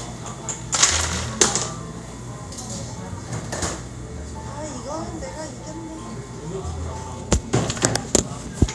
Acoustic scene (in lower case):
cafe